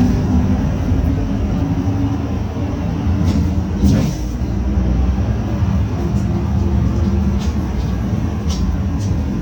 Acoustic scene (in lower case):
bus